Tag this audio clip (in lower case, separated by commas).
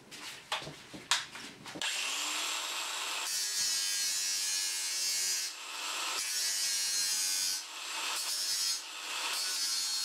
inside a small room, tools